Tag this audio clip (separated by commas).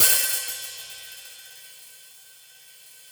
Cymbal, Musical instrument, Music, Percussion, Hi-hat